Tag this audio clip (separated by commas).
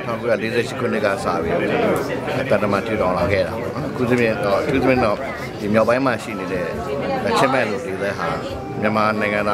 man speaking, Speech, monologue